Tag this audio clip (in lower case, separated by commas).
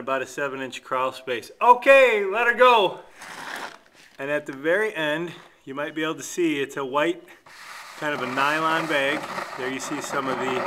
inside a large room or hall, speech